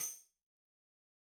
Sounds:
percussion, tambourine, music, musical instrument

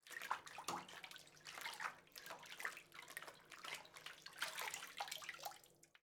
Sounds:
water, bathtub (filling or washing), home sounds

